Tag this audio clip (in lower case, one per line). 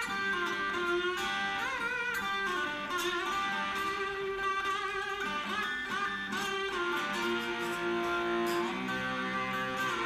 playing steel guitar